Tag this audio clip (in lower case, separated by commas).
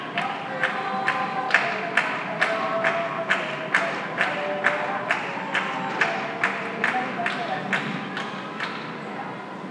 cheering, human group actions, human voice, hands, clapping